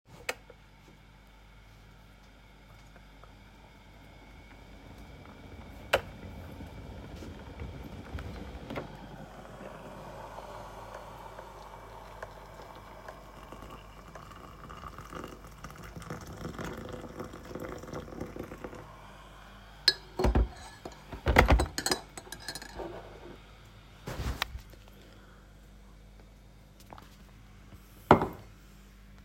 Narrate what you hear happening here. The kettle boiled and I poured the boiling water into my cup. I then mix it with a spoon